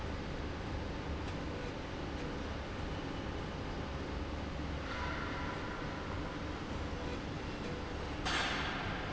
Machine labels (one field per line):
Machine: slide rail